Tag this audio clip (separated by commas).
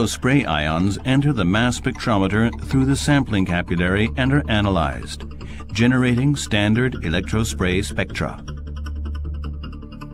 Music, Speech, Speech synthesizer